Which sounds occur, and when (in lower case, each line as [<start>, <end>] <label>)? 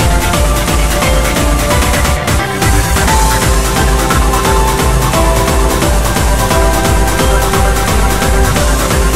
[0.00, 9.15] music